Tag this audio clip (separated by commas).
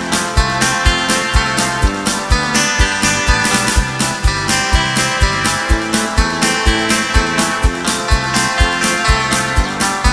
Guitar, Plucked string instrument, Acoustic guitar, Musical instrument, Music